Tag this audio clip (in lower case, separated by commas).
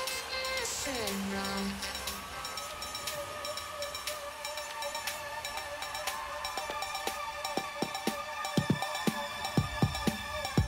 soundtrack music, video game music, music